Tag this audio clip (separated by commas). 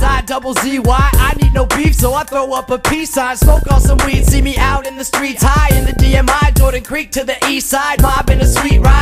Music, Rhythm and blues